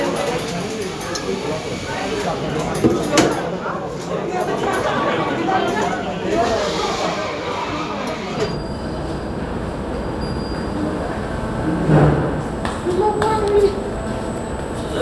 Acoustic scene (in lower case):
cafe